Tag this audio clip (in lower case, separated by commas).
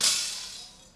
glass, shatter